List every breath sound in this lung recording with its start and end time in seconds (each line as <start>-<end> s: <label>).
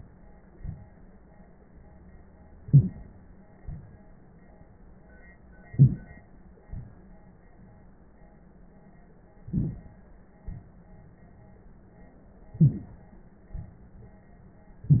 2.66-3.34 s: inhalation
2.72-2.88 s: wheeze
3.61-4.10 s: exhalation
5.77-6.28 s: inhalation
6.66-7.17 s: exhalation
9.49-10.02 s: inhalation
9.49-10.02 s: crackles
10.44-10.97 s: exhalation
12.58-12.69 s: wheeze
12.62-13.15 s: inhalation
13.53-14.23 s: exhalation